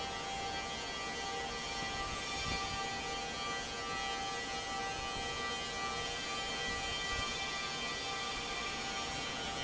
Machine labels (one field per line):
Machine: fan